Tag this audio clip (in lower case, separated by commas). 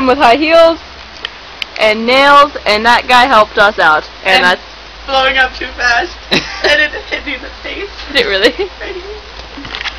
speech